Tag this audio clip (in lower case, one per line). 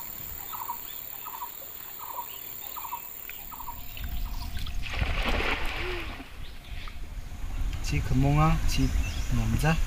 speech
outside, rural or natural
bird